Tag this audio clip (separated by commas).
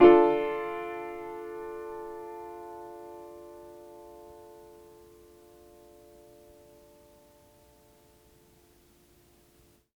Music, Musical instrument, Keyboard (musical), Piano